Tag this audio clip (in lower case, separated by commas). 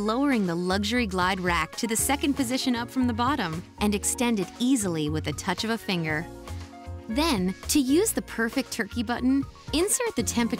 music, speech